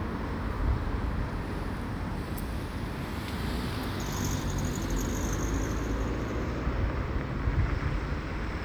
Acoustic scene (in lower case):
street